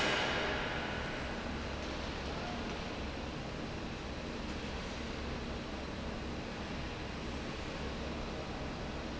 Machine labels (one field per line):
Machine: fan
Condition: normal